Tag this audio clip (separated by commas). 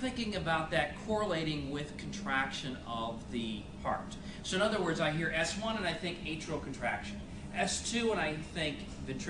Speech